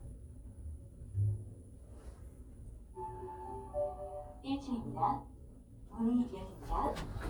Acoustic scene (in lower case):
elevator